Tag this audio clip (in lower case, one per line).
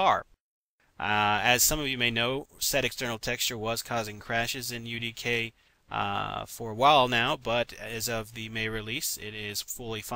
speech